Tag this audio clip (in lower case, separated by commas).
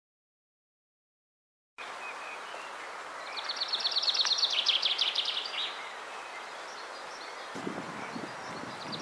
mynah bird singing